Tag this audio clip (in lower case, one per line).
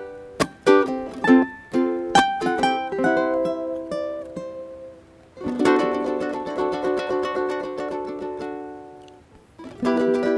playing ukulele